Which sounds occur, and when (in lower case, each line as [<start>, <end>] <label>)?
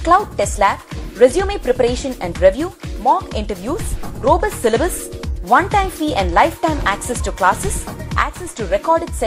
[0.03, 9.25] music
[0.07, 0.74] woman speaking
[1.10, 2.68] woman speaking
[2.91, 3.76] woman speaking
[4.06, 4.91] woman speaking
[5.43, 7.57] woman speaking
[8.01, 9.25] woman speaking